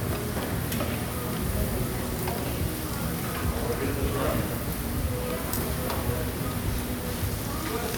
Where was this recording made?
in a restaurant